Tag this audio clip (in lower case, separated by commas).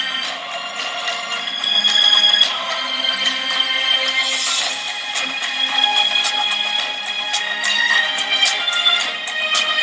music